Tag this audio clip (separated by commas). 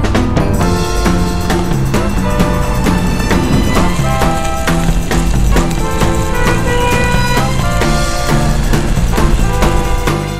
Music